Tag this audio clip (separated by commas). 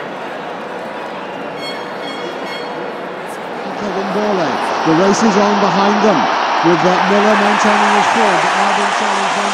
outside, urban or man-made, Speech